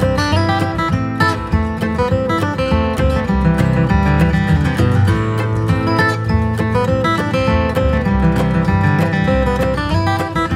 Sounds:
Plucked string instrument, Guitar, Acoustic guitar, Musical instrument, Music, Strum

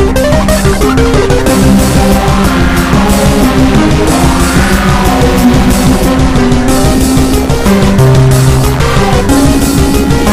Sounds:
Music, Techno, Electronic music

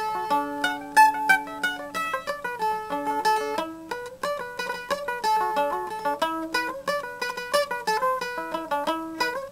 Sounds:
Musical instrument, Music, Mandolin, Plucked string instrument

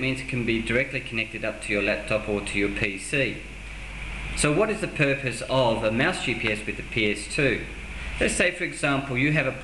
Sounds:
Speech

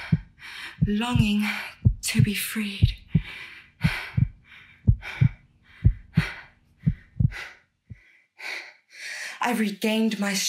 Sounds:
lions roaring

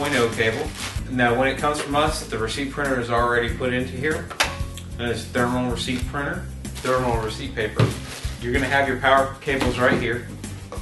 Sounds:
Music, Speech

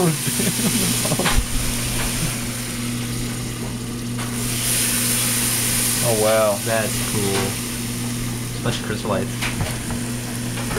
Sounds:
Speech

